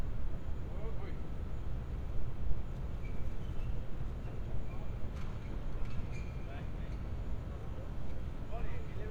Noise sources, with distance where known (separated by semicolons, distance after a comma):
person or small group talking